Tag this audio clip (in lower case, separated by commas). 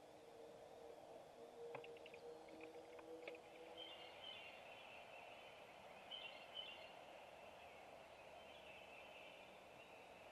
owl hooting